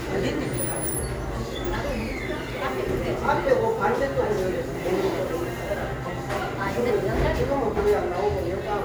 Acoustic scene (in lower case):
cafe